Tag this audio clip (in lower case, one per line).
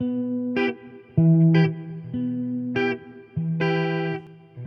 music
electric guitar
plucked string instrument
guitar
musical instrument